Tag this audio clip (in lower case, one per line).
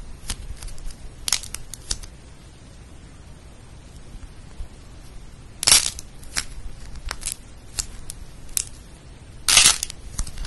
ice cracking